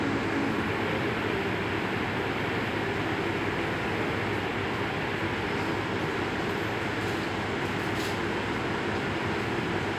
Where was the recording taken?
in a subway station